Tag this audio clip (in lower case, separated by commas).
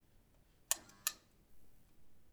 alarm